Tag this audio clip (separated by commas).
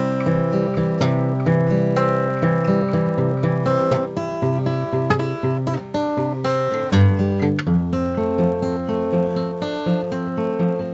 Musical instrument, Strum, Acoustic guitar, Music, Guitar